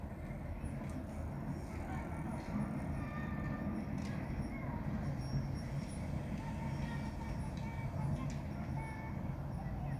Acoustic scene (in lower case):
residential area